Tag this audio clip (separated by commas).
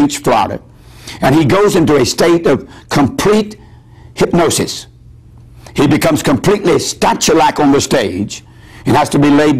Speech